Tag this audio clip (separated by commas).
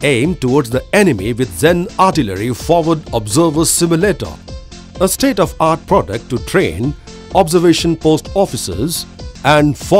Music, Speech